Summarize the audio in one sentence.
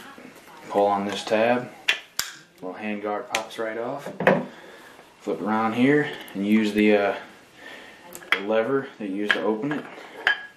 A man speaking and tapping